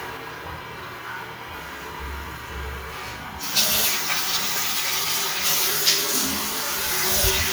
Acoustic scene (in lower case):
restroom